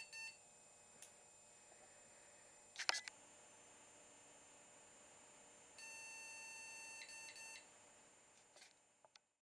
An electronic device beeps